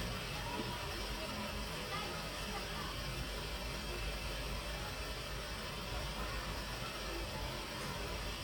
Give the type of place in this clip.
residential area